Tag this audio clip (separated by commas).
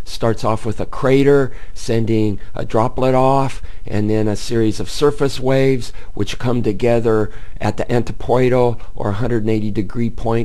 Speech